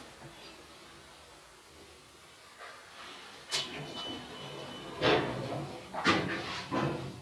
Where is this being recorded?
in an elevator